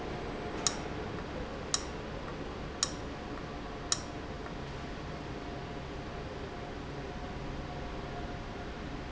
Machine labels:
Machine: valve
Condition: abnormal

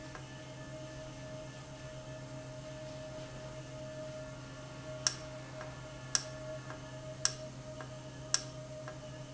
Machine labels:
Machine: valve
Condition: normal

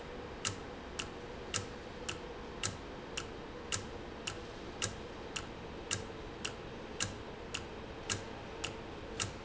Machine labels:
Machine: valve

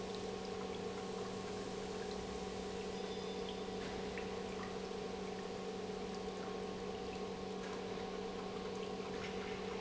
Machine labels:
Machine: pump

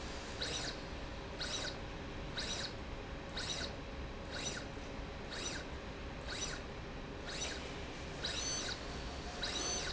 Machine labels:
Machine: slide rail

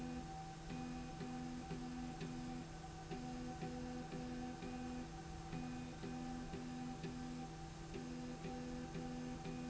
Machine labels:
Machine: slide rail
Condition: normal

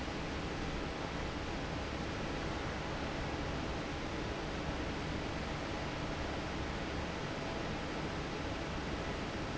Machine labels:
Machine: fan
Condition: normal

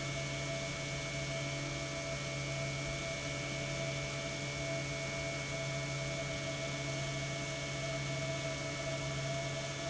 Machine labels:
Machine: pump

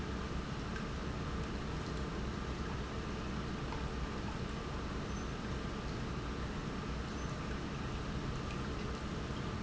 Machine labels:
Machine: pump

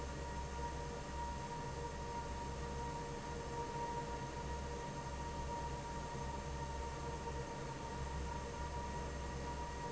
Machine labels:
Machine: fan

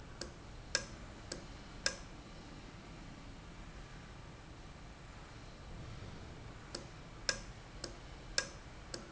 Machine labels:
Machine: valve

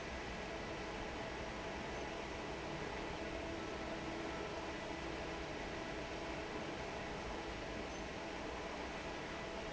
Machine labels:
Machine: fan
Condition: normal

